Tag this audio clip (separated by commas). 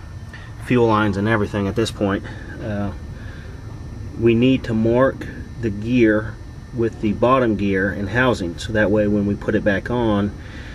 Speech